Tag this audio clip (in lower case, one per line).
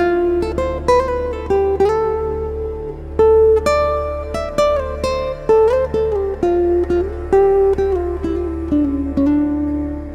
music